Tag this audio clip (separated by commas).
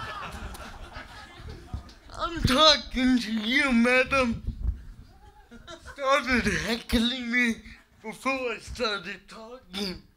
Speech